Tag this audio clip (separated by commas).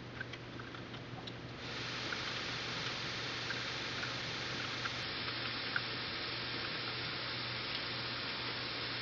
Speech